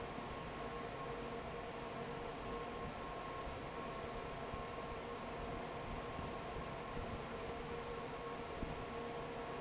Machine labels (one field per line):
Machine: fan